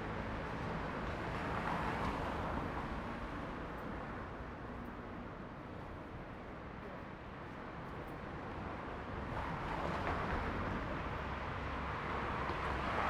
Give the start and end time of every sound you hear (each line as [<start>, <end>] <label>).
[0.00, 6.21] car
[0.00, 6.21] car engine accelerating
[0.00, 6.21] car wheels rolling
[8.15, 13.11] car
[8.15, 13.11] car wheels rolling